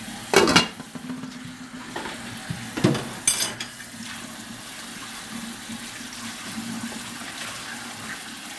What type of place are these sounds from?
kitchen